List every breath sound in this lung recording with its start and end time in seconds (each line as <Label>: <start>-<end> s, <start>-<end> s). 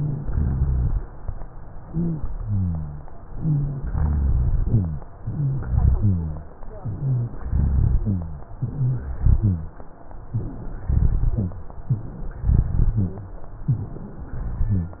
Inhalation: 1.86-2.26 s, 3.36-3.76 s, 5.20-5.63 s, 6.85-7.46 s, 8.61-9.20 s, 10.32-10.65 s, 11.91-12.14 s, 13.66-14.04 s
Exhalation: 0.25-0.97 s, 2.33-3.02 s, 3.89-4.52 s, 5.90-6.51 s, 7.46-8.54 s, 9.22-9.81 s, 10.87-11.73 s, 12.52-13.32 s, 14.38-15.00 s
Wheeze: 0.00-0.25 s, 1.86-2.26 s, 3.36-3.76 s, 5.20-5.63 s, 6.85-7.46 s, 8.61-9.20 s, 10.32-10.65 s, 11.91-12.14 s, 13.66-14.04 s
Rhonchi: 0.25-0.97 s, 2.33-3.02 s, 3.89-4.52 s, 5.90-6.51 s, 7.46-8.54 s, 9.22-9.81 s, 10.87-11.73 s, 12.52-13.32 s, 14.38-15.00 s